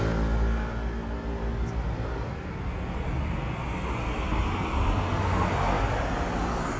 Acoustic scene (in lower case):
street